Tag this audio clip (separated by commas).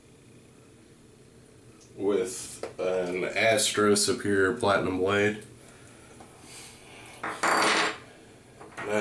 Speech